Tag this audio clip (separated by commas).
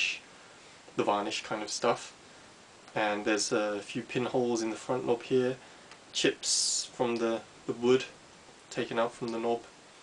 Speech